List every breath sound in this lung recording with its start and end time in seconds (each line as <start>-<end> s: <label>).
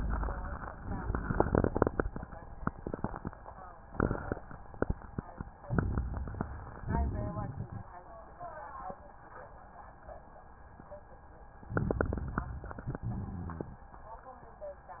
5.60-6.85 s: inhalation
5.68-6.75 s: crackles
6.84-7.91 s: exhalation
6.84-7.91 s: crackles
11.68-12.75 s: inhalation
11.68-12.75 s: crackles
12.80-13.70 s: exhalation
12.80-13.70 s: crackles